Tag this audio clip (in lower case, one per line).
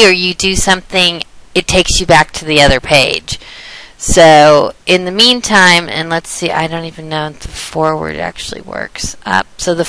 speech